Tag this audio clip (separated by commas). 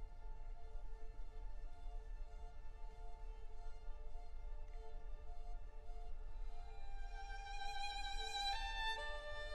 Musical instrument, fiddle, Music